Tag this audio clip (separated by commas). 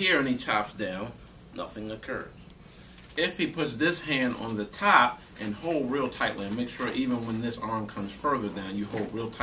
Speech